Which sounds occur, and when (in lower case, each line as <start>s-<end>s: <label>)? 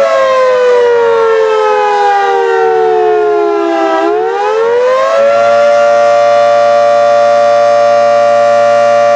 0.0s-9.1s: siren